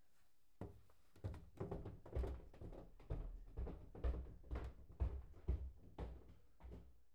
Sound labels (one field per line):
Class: footsteps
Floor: wooden floor